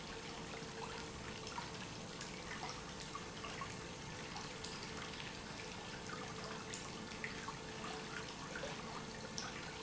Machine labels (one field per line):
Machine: pump